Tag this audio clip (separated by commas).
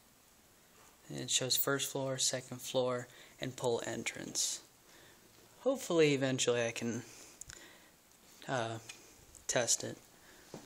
Speech